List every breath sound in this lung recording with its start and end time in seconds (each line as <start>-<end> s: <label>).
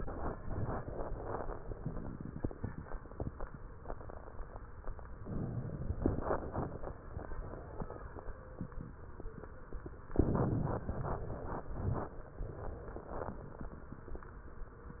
5.12-6.02 s: inhalation
6.07-6.96 s: exhalation
10.09-10.87 s: inhalation
10.95-12.05 s: exhalation